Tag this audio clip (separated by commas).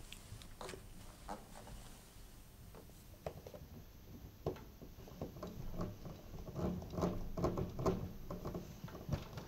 inside a small room